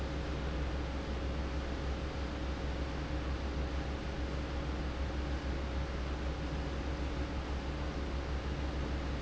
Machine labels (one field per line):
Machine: fan